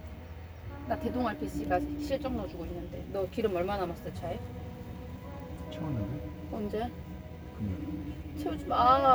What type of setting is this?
car